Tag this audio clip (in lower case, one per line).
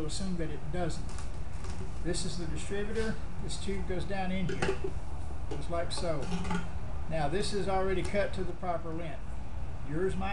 speech